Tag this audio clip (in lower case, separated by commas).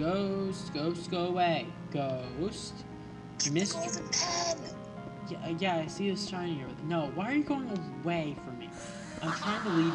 speech, music